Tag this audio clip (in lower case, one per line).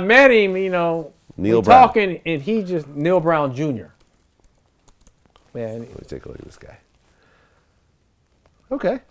inside a small room
speech